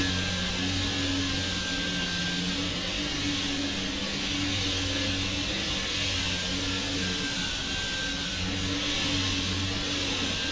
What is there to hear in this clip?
unidentified impact machinery